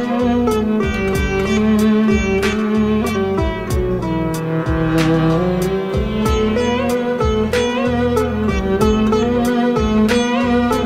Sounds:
playing sitar

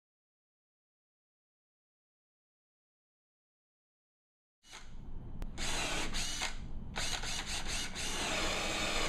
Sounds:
Tools

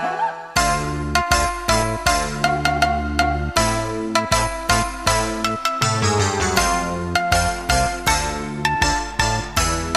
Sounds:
Music, Video game music

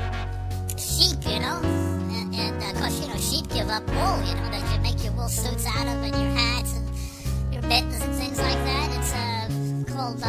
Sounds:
Speech, Music

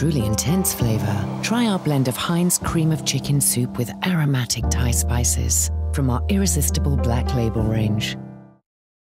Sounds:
Speech, Music

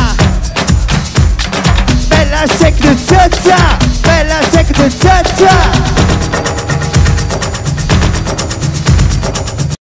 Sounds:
Music

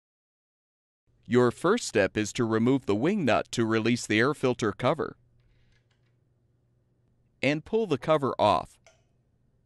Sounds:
Speech

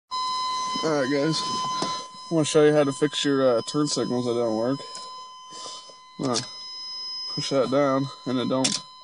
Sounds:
Speech

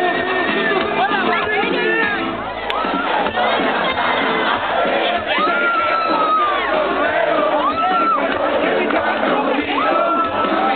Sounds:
Speech

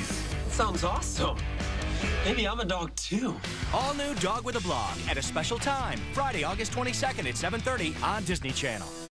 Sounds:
Speech, Music

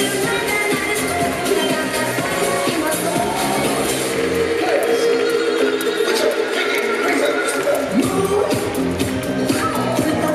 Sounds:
rope skipping

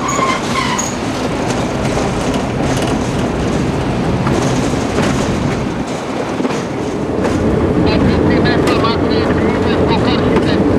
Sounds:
Railroad car, Vehicle, Train, Rail transport, Speech

